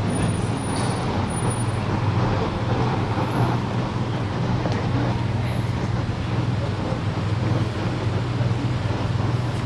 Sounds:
Vehicle, Car

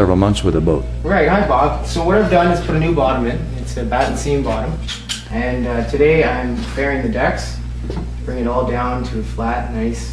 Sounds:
Speech

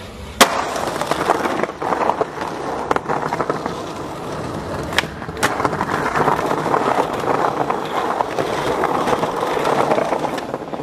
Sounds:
Skateboard, skateboarding

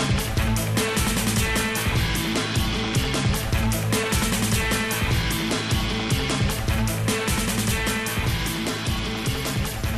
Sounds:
Music

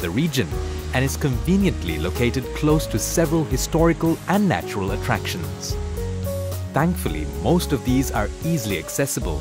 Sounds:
Music, Speech

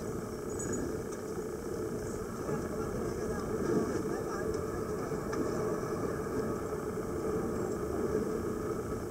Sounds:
scuba diving

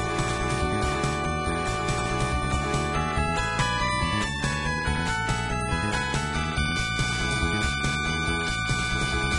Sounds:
Video game music, Music

